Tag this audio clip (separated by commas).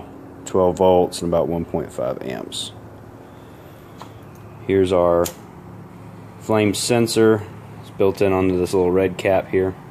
Speech, Crackle